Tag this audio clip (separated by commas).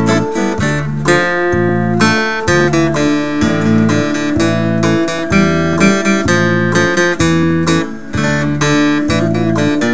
Music